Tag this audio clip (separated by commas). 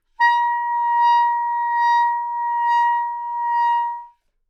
Music, Musical instrument, woodwind instrument